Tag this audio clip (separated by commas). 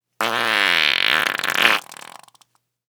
Fart